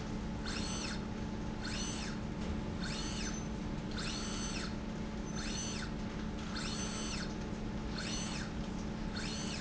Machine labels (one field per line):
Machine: slide rail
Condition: normal